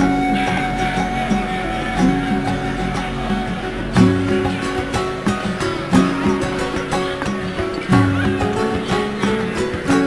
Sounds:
Tender music, Music

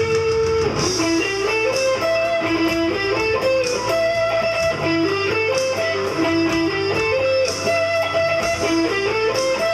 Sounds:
Guitar, Musical instrument, Music

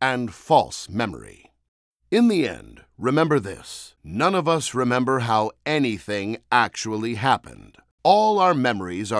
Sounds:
Speech synthesizer

